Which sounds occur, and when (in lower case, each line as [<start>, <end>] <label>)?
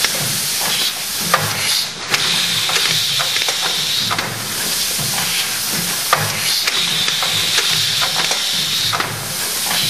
[0.00, 9.85] mechanisms
[7.52, 7.65] tick
[9.57, 9.76] tap